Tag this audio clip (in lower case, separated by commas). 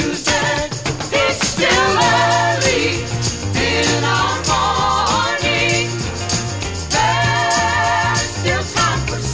jingle bell